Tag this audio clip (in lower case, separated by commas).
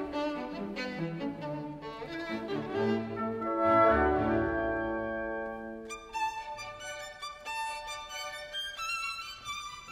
music, fiddle, musical instrument